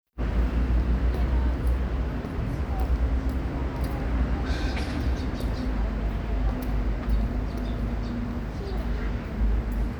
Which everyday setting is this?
street